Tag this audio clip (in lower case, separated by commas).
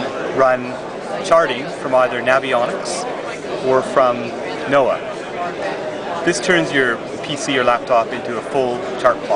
speech